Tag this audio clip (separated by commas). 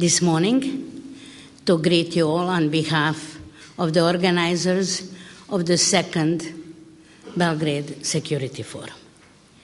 woman speaking, Speech